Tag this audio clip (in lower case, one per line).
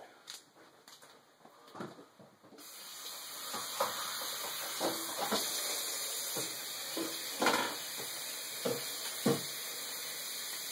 water